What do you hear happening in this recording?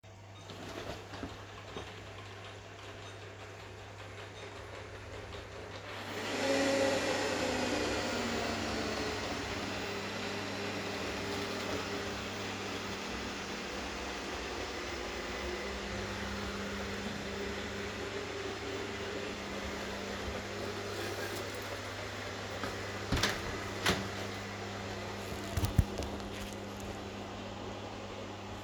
I started my vacuum cleaner took my key and opend the door